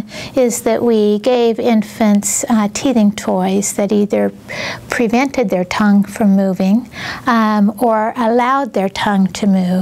Woman speaking in a presenting tone